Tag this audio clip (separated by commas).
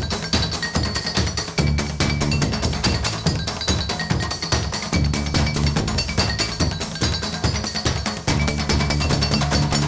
Music